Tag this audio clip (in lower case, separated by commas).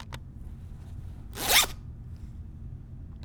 zipper (clothing), domestic sounds